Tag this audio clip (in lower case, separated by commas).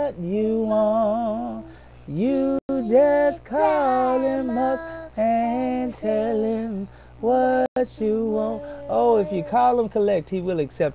male singing, child singing